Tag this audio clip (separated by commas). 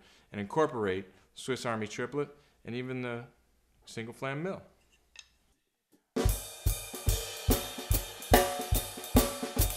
Speech, Musical instrument, Bass drum, Drum, Percussion, Drum kit, Cymbal, Snare drum, Music